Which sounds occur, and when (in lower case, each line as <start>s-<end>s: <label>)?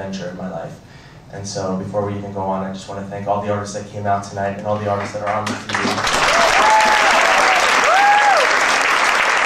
0.0s-0.7s: male speech
0.0s-5.4s: mechanisms
0.8s-1.2s: breathing
1.3s-5.5s: male speech
5.4s-9.4s: applause
6.3s-7.1s: crowd
6.3s-7.1s: shout
7.2s-7.7s: crowd
7.3s-7.6s: shout
7.8s-8.4s: shout
7.8s-8.5s: crowd